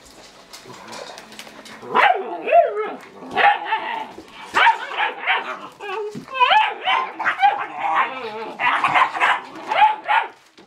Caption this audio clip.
Clicks on a hard surface then lots of dogs vocalizing and moving around